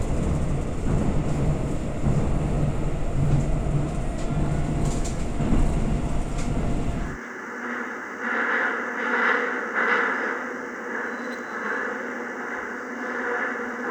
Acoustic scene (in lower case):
subway train